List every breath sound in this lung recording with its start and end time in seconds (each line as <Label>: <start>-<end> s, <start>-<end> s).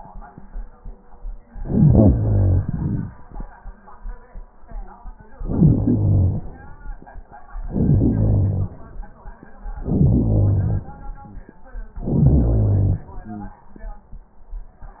Inhalation: 1.55-2.67 s, 5.28-6.58 s, 7.53-8.75 s, 9.71-10.96 s, 11.98-13.12 s
Exhalation: 2.63-3.62 s, 13.10-14.12 s
Wheeze: 13.27-13.62 s
Crackles: 2.62-3.60 s